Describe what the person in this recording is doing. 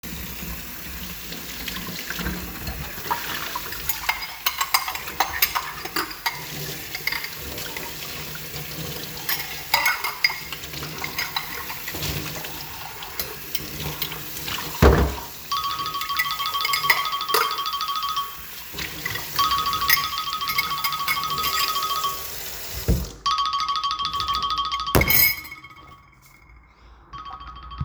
The device was placed in the kitchen while water was running. I handled dishes and cutlery under the tap and, during this period, a ringtone occurred so that the sounds overlapped. Wind and faint sounds from outside the window are audible in the background.